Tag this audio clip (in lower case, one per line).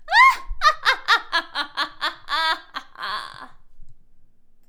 human voice
laughter
giggle